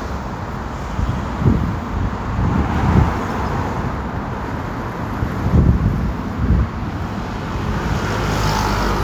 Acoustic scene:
street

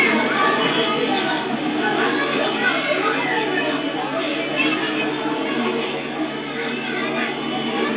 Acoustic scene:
park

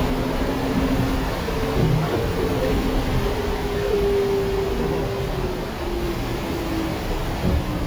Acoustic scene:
bus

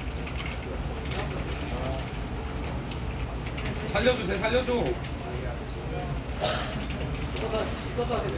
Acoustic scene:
crowded indoor space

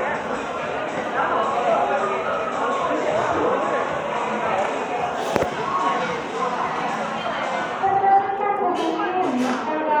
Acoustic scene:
cafe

